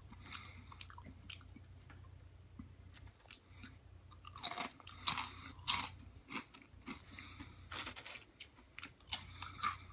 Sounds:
mastication

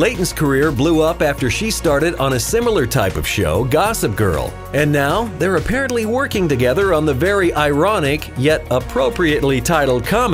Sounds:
music, speech

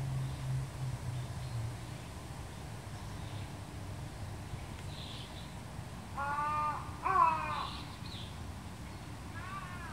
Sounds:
animal

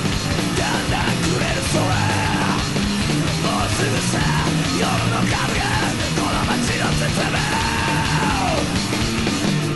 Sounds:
music, male singing

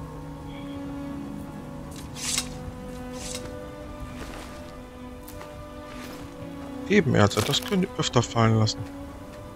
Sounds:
music, speech

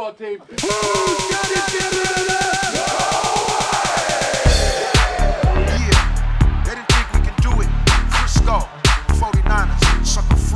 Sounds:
music, speech, pop music

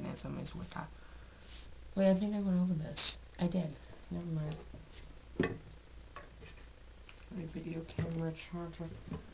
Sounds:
speech

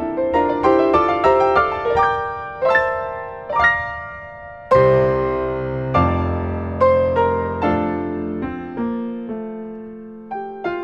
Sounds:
tender music, music

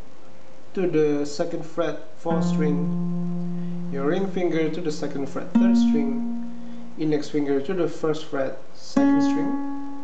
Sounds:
speech, music

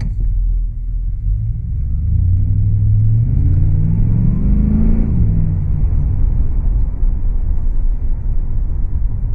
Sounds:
vehicle, car, rumble

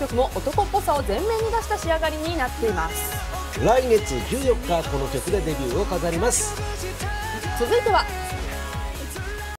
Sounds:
speech, music

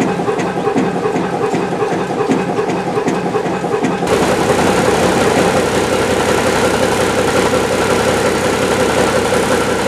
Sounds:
vehicle, engine, water vehicle

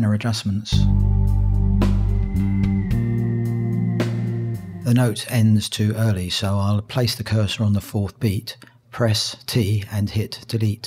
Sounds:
speech, music

